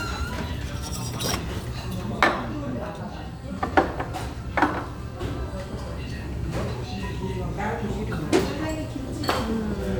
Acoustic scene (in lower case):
restaurant